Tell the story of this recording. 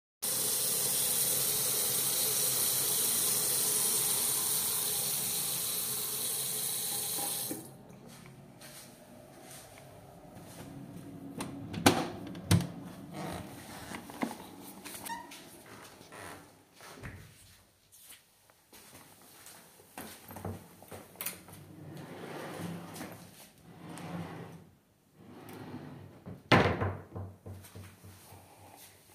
Closing the running water in toilet and opening the door and going out to hallway and grabbing something from the wardrobe